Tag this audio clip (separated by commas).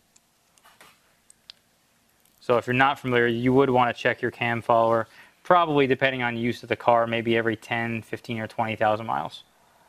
Speech